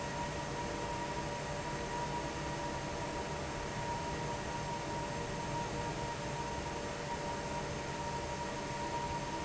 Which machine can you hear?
fan